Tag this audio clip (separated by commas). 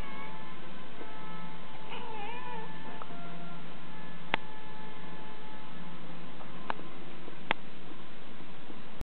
Cat, cat meowing, pets, Meow, Music, Animal